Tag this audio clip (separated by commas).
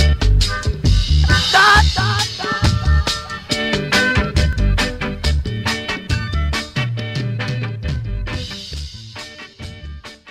Music